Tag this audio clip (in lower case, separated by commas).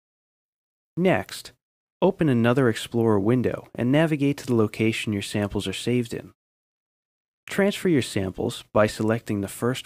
speech